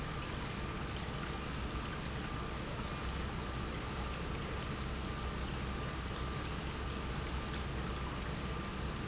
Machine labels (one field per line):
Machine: pump